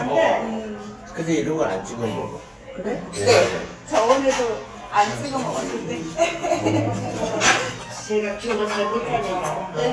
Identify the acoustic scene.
restaurant